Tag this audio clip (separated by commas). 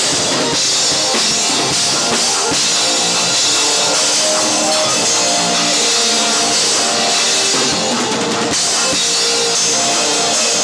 Music